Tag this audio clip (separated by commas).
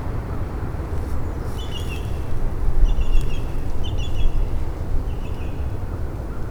Animal, Bird, Wild animals